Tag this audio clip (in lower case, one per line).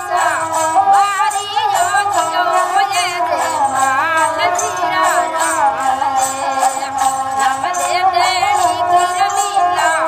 music